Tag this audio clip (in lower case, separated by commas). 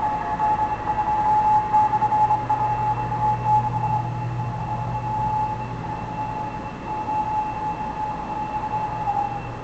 radio